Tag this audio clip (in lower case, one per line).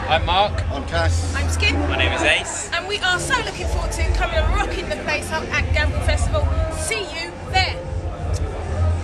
speech
music